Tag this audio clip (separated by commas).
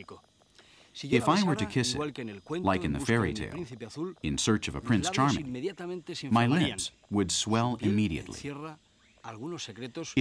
Speech